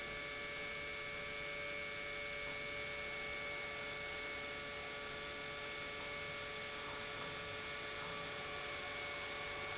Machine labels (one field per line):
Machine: pump